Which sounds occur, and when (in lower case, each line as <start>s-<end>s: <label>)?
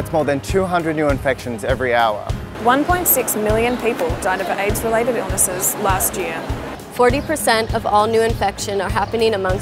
0.0s-2.3s: man speaking
0.0s-9.6s: music
2.5s-6.6s: woman speaking
2.5s-6.8s: mechanisms
3.6s-3.8s: bird call
4.3s-4.7s: bird call
5.5s-6.0s: bird call
6.4s-6.5s: bird call
6.8s-9.6s: background noise
6.9s-9.6s: woman speaking
7.1s-7.4s: bird call
8.3s-8.5s: bird call
8.9s-9.1s: bird call